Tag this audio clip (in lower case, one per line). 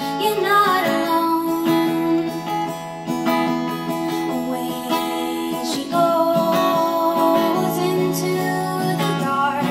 female singing
music